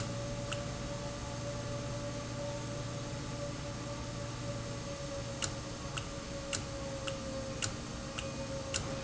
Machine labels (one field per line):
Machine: valve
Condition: normal